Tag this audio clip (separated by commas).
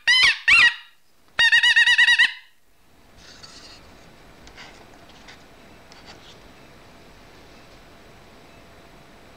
inside a small room